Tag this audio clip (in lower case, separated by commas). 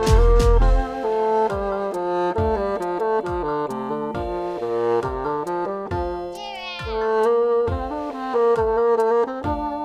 playing bassoon